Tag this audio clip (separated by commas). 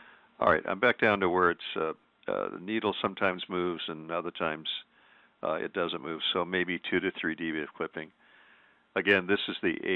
Speech, Radio